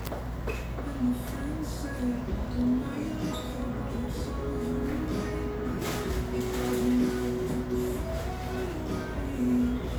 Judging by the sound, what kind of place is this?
cafe